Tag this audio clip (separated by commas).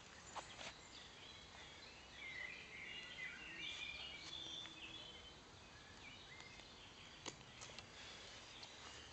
Environmental noise